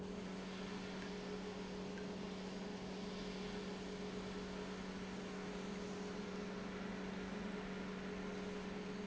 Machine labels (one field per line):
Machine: pump